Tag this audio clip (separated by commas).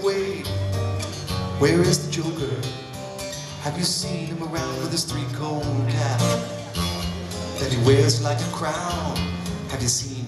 Blues, Music